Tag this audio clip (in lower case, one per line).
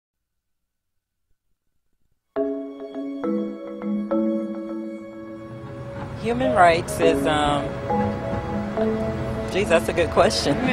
outside, urban or man-made
speech
music